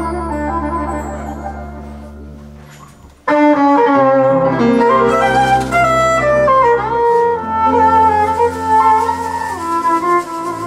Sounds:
musical instrument, music, violin

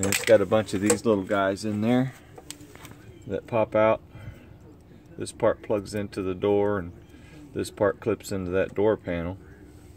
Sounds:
speech

